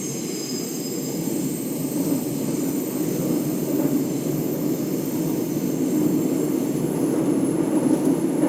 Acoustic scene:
subway train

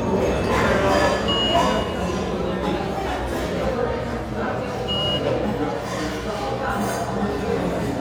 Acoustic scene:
restaurant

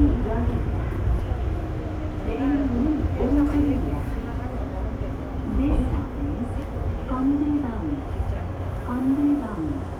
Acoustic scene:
subway train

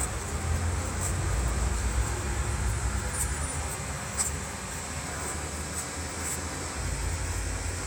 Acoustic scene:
street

